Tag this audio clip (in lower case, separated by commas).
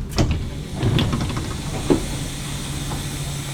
vehicle, rail transport, metro